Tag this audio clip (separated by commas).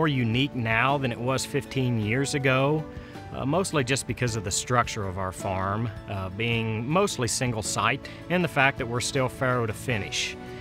Speech, Music